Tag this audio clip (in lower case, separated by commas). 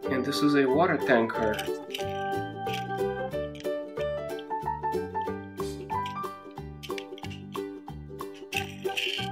music, speech